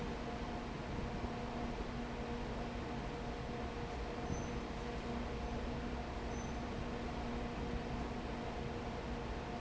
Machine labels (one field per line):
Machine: fan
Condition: abnormal